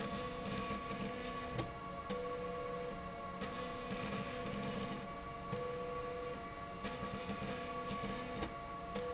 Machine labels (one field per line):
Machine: slide rail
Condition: abnormal